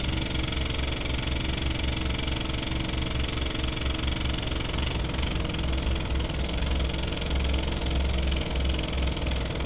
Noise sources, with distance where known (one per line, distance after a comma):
jackhammer, near